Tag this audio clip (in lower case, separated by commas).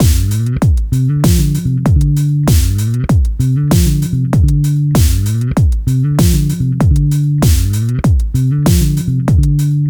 plucked string instrument, bass guitar, music, guitar, musical instrument